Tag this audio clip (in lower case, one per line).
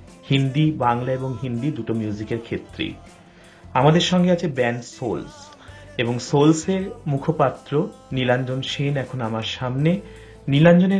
music
speech